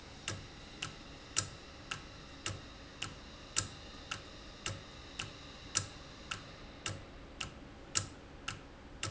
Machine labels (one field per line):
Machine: valve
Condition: normal